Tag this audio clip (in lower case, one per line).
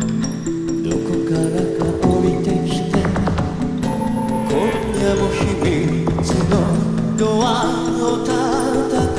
music